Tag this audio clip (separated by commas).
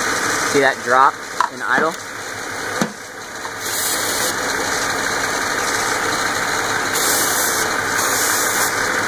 Vehicle, Idling, Speech, Car, Engine